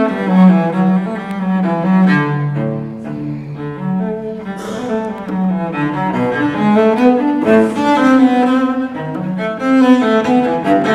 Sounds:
Bowed string instrument, Cello, playing cello

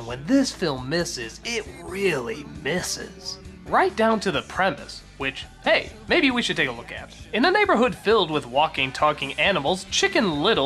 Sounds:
Music, Speech

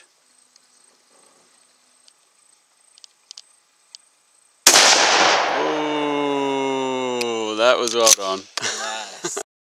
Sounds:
Speech

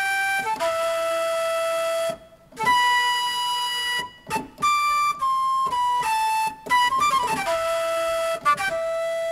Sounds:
Music, playing flute, Flute

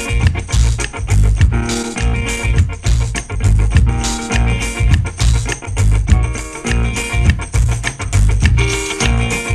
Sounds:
Music, Funk

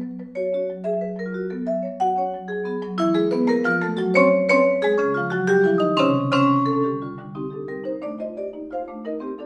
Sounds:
playing vibraphone

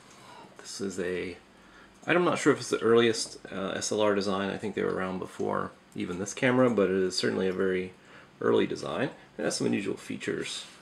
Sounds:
Speech

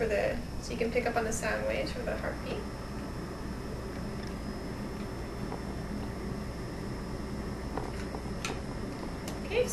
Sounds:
Speech

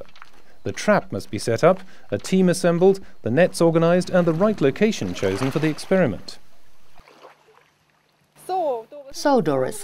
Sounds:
Speech

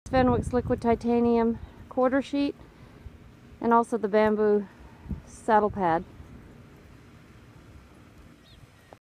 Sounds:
Speech

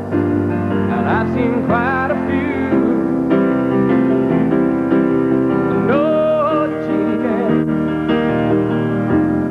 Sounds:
Music, Piano

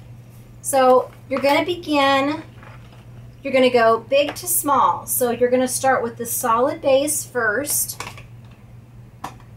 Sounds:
Speech

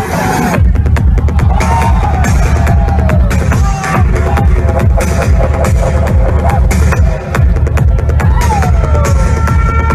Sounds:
people shuffling

